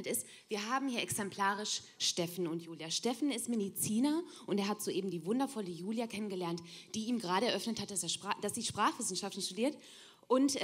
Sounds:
Speech

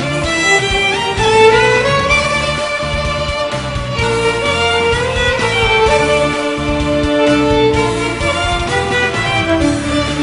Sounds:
Music, fiddle, Musical instrument

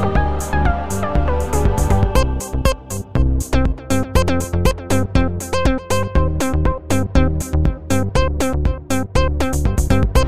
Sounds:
Music

